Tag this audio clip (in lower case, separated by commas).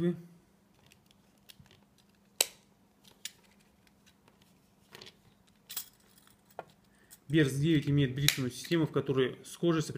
speech